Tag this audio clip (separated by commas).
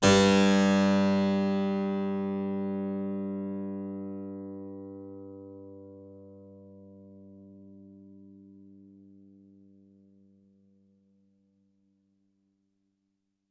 Music, Keyboard (musical), Musical instrument